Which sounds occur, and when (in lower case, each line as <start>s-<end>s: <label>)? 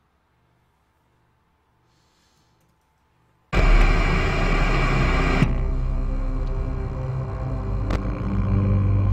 0.0s-3.5s: background noise
0.0s-9.1s: video game sound
1.8s-2.5s: breathing
2.5s-2.8s: clicking
2.9s-3.0s: clicking
3.5s-9.1s: music
5.5s-5.6s: clicking
6.4s-6.5s: clicking
7.9s-8.0s: generic impact sounds